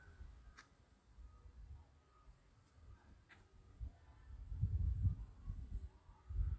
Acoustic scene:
park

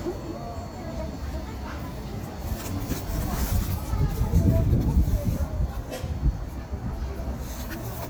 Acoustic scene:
street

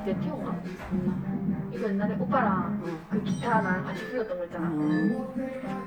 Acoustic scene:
cafe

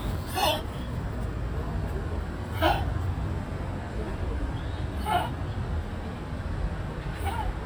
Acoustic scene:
park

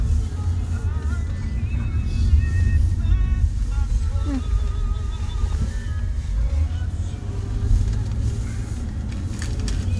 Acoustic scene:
car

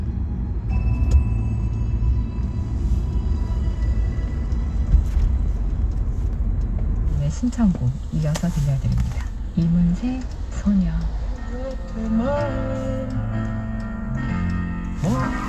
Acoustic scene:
car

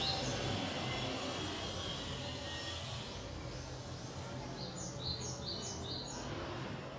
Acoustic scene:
residential area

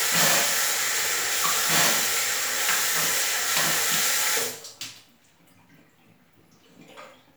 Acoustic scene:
restroom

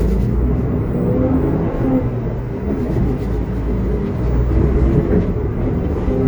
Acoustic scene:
bus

